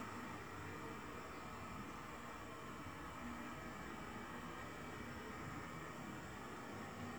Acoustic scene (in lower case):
restroom